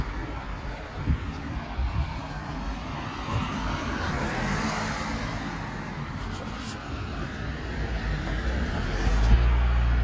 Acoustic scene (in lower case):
street